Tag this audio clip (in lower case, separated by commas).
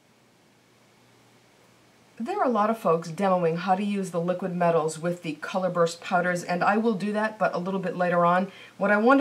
speech